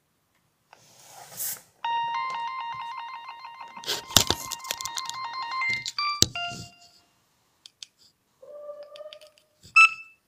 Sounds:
ringtone, bleep

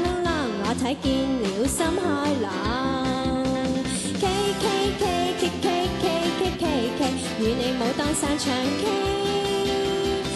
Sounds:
music

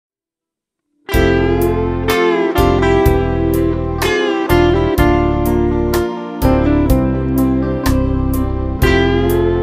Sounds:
music, slide guitar

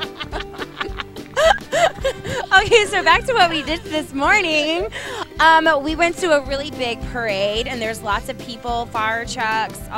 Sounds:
speech, music

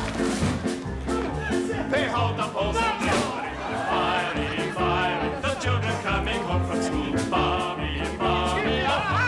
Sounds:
laughter

